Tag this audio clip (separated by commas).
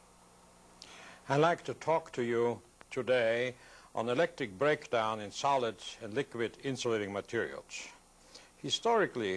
Speech